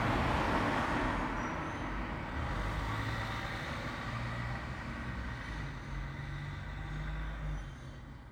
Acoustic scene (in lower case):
street